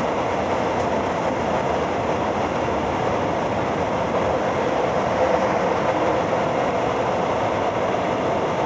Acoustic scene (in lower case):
subway train